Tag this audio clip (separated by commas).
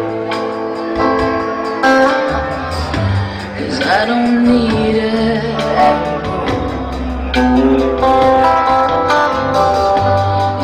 Female singing, Music